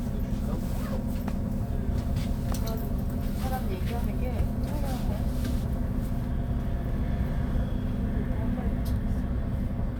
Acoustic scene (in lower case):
bus